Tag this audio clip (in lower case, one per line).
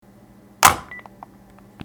telephone
alarm